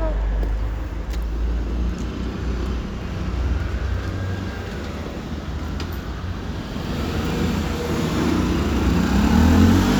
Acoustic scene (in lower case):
street